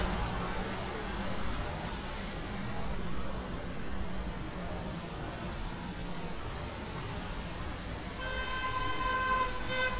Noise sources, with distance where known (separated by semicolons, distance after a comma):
car horn, near